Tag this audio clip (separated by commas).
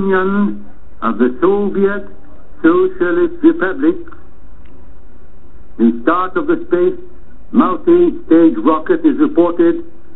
Speech, Radio